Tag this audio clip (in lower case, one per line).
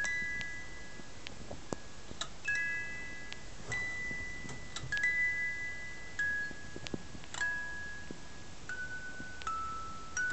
music
inside a small room